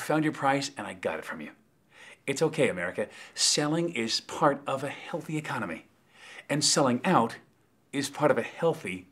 A man speaking